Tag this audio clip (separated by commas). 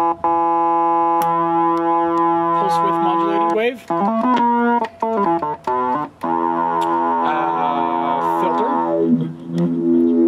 Music, Speech, Sampler